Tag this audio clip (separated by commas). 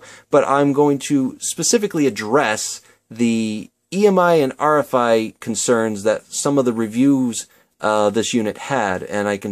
Speech